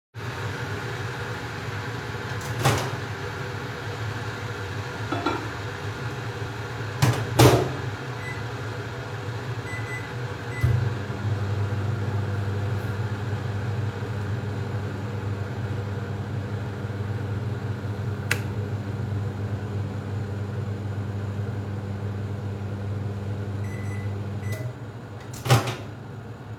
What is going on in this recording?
Electric kettle is cooking water from the start of the recording, creating background noise. I open the microwave door, insert a plate, close the door and start the microwave. Electric kettle turns off. Microwave is turned off, door is opened.